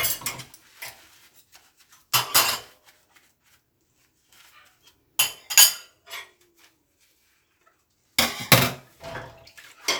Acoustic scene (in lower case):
kitchen